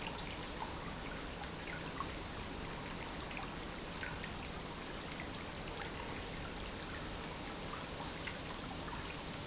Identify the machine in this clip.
pump